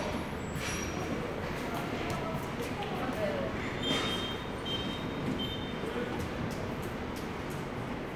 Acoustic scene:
subway station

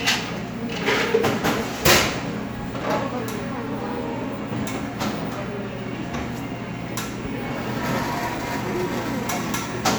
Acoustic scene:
cafe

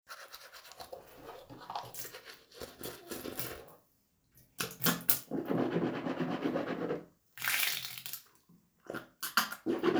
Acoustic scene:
restroom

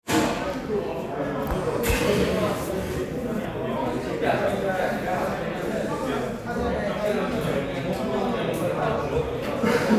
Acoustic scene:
crowded indoor space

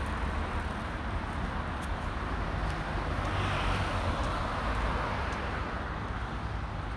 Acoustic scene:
street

